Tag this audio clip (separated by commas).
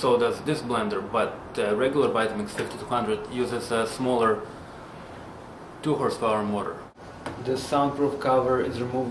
Speech, inside a small room